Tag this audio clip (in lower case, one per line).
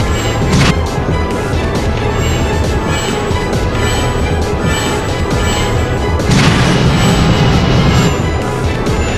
music